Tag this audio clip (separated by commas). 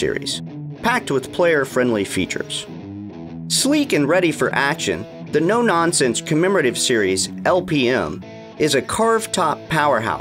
Musical instrument, Music, Acoustic guitar, Speech, Strum, Plucked string instrument, Guitar